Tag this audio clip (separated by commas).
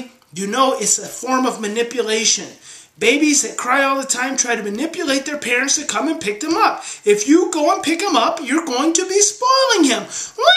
Speech